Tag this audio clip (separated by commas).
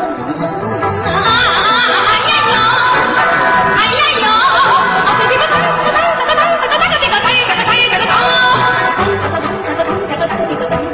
Music, Female singing